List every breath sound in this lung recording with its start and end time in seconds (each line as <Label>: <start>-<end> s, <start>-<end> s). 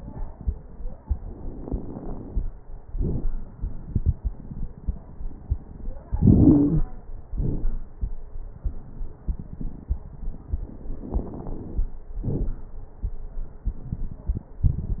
Inhalation: 1.58-2.37 s, 6.10-6.82 s, 11.00-11.95 s
Exhalation: 2.87-3.29 s, 7.35-7.91 s, 12.26-12.61 s
Wheeze: 6.10-6.82 s
Crackles: 1.58-2.37 s, 2.87-3.29 s, 7.35-7.91 s, 11.00-11.95 s, 12.26-12.61 s